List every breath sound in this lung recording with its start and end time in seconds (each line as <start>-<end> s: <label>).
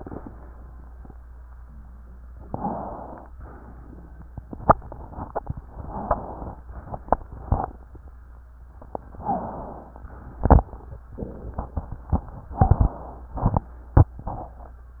2.45-3.27 s: inhalation
3.39-4.28 s: exhalation
5.72-6.61 s: inhalation
9.18-10.06 s: inhalation